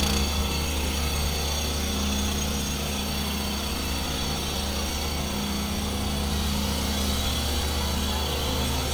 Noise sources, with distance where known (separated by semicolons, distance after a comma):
jackhammer, near